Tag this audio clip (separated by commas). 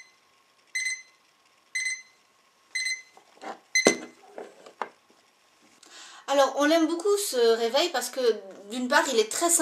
alarm clock ringing